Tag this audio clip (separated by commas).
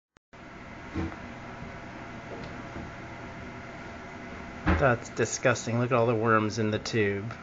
Speech